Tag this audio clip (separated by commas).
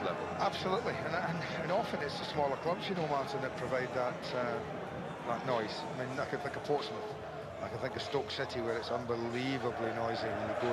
Speech